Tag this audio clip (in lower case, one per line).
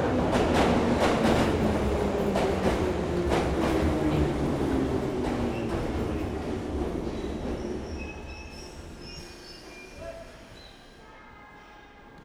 underground
rail transport
vehicle